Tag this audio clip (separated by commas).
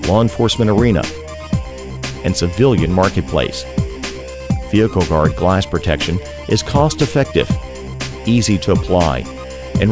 Music, Speech